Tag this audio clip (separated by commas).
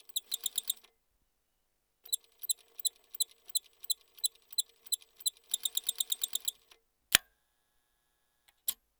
Mechanisms